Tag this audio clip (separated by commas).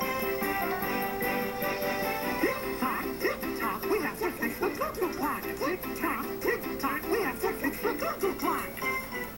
Music